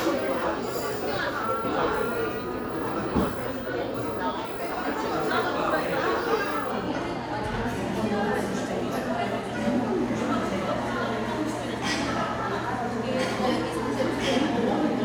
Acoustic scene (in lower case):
crowded indoor space